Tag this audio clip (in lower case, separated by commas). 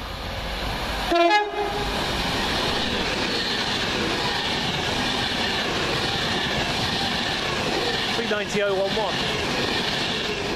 rail transport, clickety-clack, train, train wagon, train horn